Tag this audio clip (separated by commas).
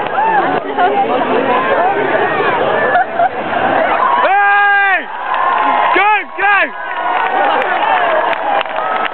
canoe, Water vehicle, Speech, Vehicle